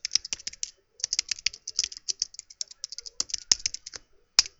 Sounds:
Computer keyboard, Domestic sounds, Typing

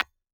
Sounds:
Tap, Glass

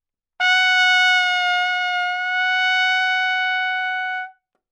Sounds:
Trumpet, Music, Brass instrument, Musical instrument

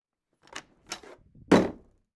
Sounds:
Slam, Domestic sounds, Door

